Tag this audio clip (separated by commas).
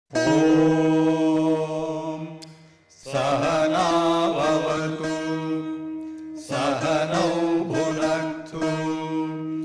Mantra, Music